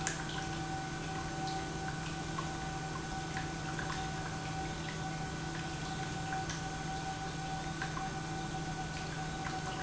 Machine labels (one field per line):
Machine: pump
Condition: normal